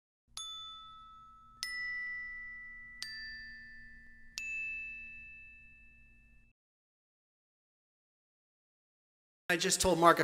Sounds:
Ding

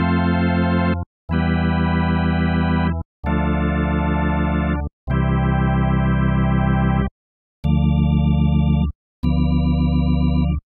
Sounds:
playing electronic organ

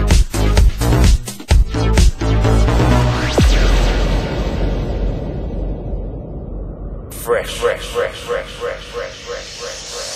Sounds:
Speech, Music

